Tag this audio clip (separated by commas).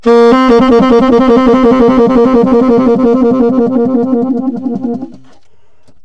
Music, Musical instrument, woodwind instrument